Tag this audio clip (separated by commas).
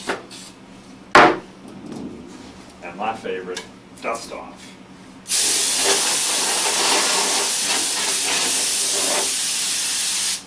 Speech, inside a small room